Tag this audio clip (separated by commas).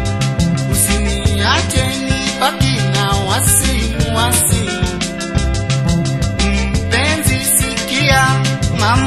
Singing, Music, Happy music